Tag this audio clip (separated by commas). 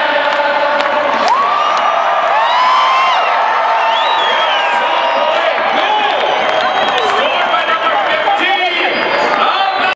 Speech, Music